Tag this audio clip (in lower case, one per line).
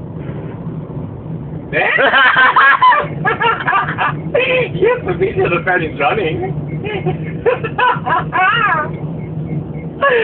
speech